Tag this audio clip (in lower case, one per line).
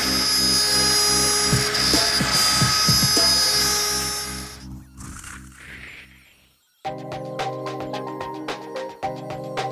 tools
music